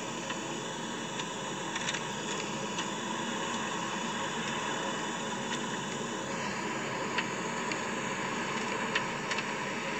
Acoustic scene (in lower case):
car